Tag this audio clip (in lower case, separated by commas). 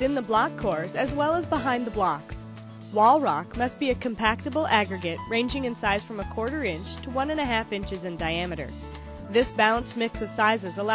speech, music